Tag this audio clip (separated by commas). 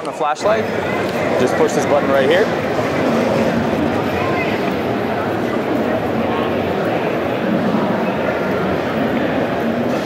Speech